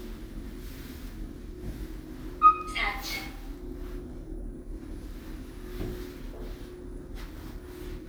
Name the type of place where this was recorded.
elevator